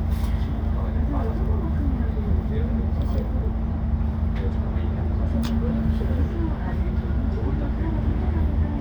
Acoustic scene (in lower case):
bus